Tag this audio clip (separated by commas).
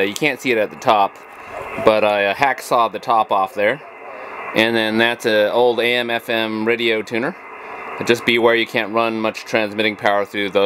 Speech